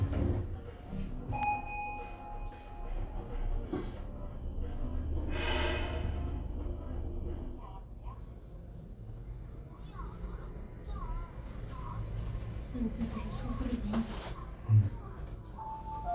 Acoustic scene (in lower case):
elevator